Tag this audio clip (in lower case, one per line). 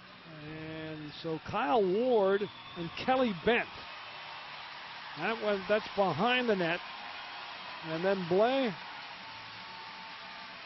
speech